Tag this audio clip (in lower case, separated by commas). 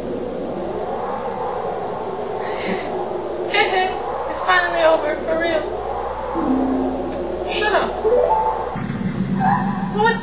music, speech